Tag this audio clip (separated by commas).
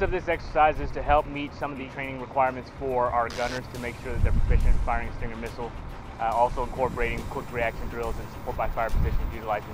Speech